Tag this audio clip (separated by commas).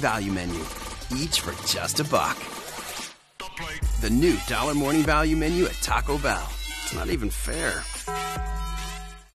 Music, Speech